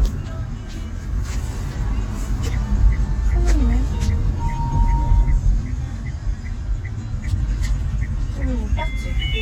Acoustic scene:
car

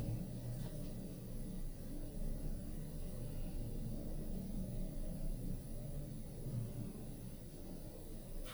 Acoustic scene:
elevator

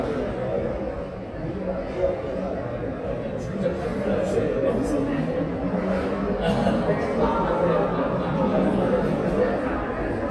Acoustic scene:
crowded indoor space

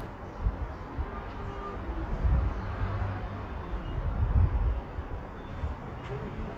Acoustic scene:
residential area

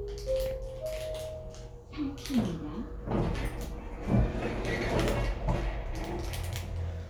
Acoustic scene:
elevator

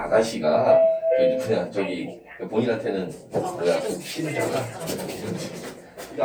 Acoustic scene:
elevator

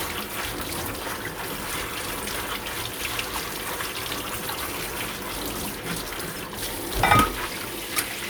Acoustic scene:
kitchen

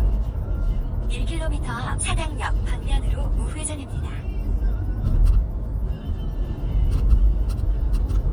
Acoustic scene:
car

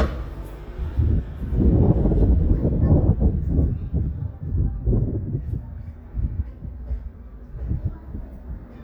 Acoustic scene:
residential area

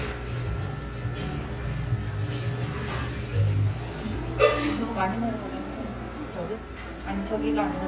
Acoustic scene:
cafe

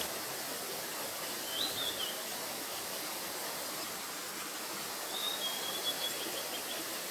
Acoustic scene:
park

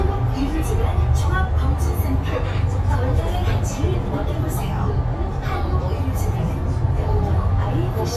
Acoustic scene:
bus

